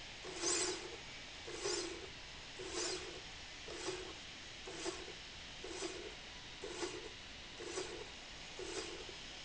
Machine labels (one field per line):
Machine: slide rail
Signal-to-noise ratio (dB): 6 dB